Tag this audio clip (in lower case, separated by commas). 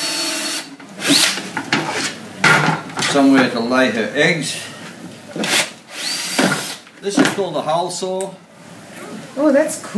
speech